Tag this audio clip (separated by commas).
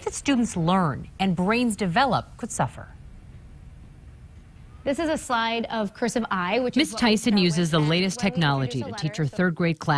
Speech